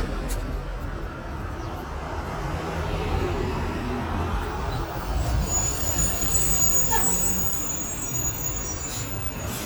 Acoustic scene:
street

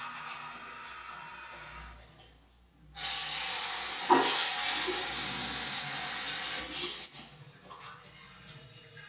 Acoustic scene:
restroom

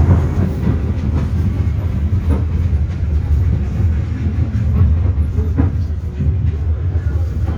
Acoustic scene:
bus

